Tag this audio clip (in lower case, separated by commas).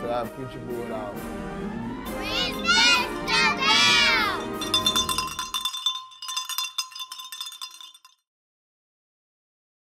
cowbell